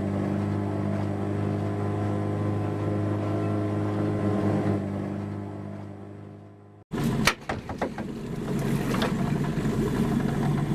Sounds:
vehicle, speedboat

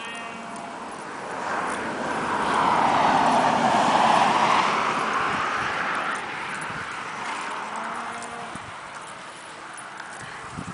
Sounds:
clip-clop

